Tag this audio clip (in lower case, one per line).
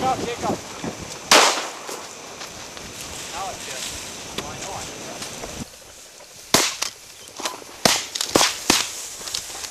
speech